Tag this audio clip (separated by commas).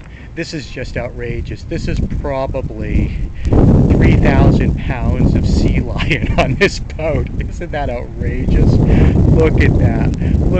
Speech